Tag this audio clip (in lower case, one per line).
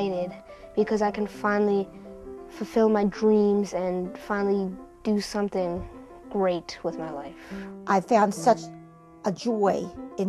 music
speech